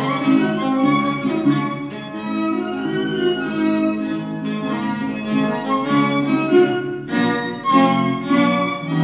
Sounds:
Bowed string instrument, Cello, fiddle, Double bass

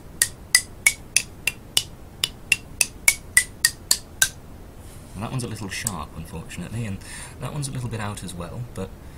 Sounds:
Speech

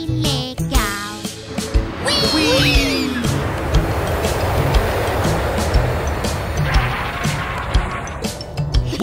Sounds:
airplane

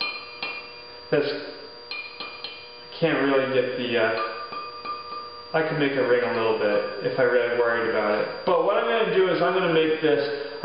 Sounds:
Clatter, Speech

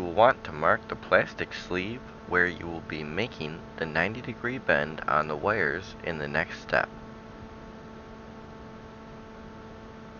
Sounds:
Speech

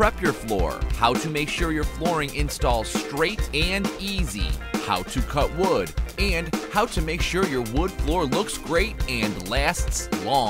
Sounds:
Speech, Music

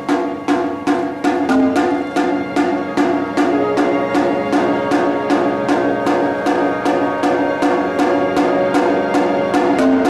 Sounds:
Orchestra, Percussion, Music

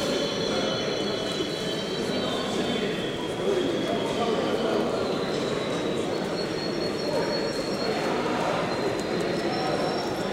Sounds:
Speech, dove, Bird

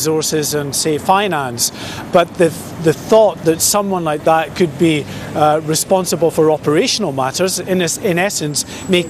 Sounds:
Speech

